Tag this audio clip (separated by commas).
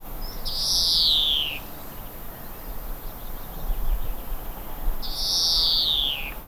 Bird, Wild animals, bird song, Animal